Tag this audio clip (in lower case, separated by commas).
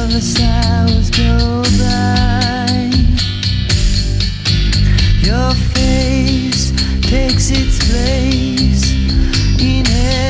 music